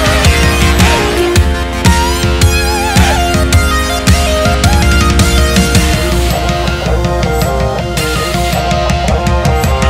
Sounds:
Music

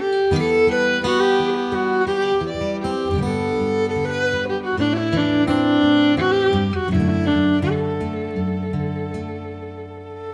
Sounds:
String section

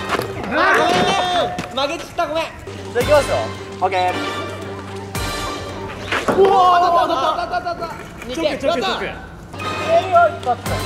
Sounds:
bouncing on trampoline

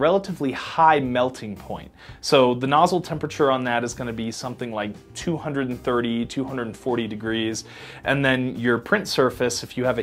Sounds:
Speech

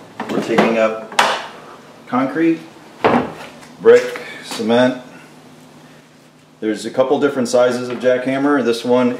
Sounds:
Speech

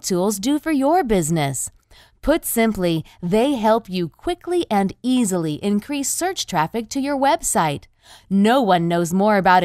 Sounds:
Speech

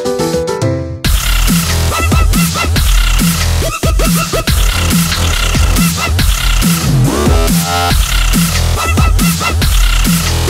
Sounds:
Electronic music, Music, Dubstep

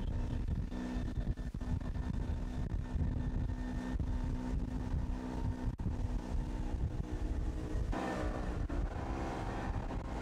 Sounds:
Water

